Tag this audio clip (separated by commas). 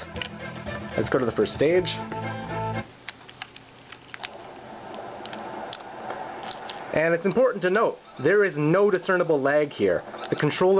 Speech, Music, inside a small room